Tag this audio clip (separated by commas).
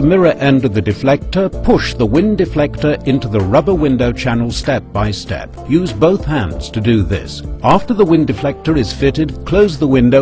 Music, Speech